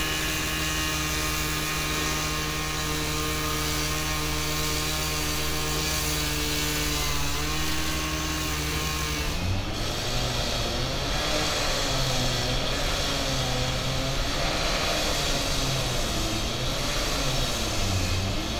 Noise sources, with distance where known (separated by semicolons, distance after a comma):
unidentified powered saw